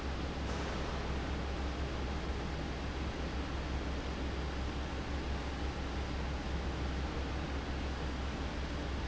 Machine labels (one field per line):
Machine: fan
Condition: abnormal